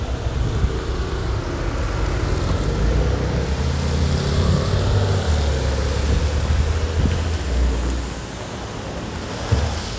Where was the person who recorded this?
on a street